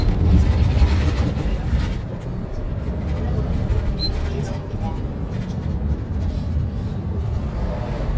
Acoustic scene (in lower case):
bus